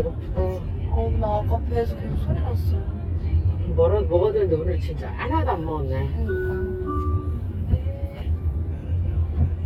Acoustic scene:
car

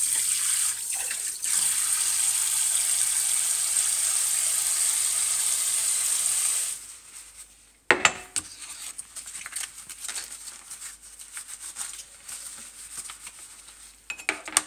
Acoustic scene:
kitchen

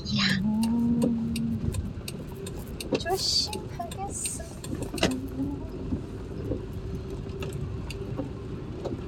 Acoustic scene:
car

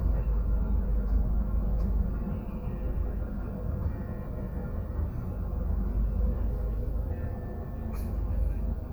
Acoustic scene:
bus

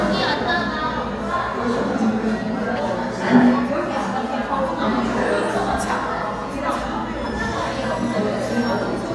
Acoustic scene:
crowded indoor space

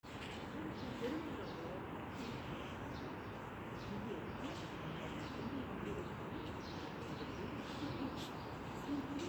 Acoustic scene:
residential area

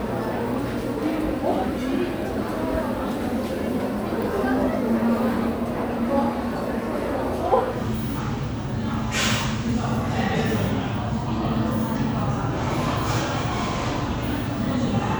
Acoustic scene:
crowded indoor space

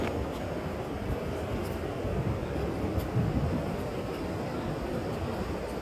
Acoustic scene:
park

